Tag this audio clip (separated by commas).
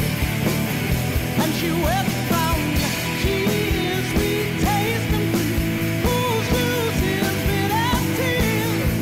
Music